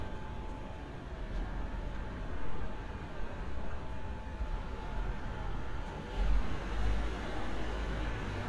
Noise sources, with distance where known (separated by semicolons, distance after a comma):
engine of unclear size